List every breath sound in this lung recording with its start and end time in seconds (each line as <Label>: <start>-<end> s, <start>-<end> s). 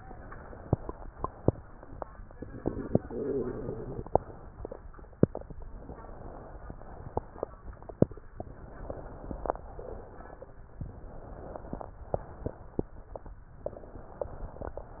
Inhalation: 0.00-1.04 s, 3.06-4.04 s, 5.64-6.70 s, 8.35-9.57 s, 10.75-11.94 s, 13.62-14.76 s
Exhalation: 1.04-1.96 s, 4.04-5.02 s, 6.70-7.59 s, 9.57-10.57 s, 11.94-13.29 s, 14.76-15.00 s